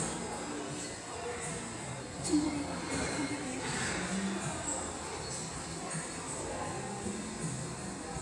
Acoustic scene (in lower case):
subway station